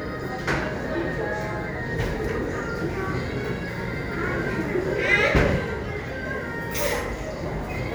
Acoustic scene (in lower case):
cafe